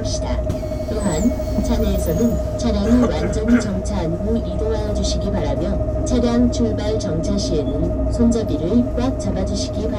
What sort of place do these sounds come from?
bus